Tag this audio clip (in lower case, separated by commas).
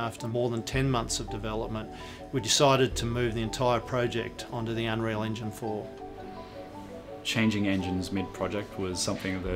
speech, music